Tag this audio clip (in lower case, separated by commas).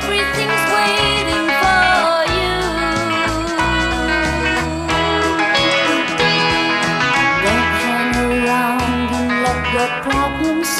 music, slide guitar